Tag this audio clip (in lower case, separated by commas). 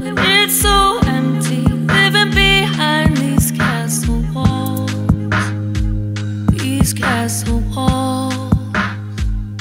music, dubstep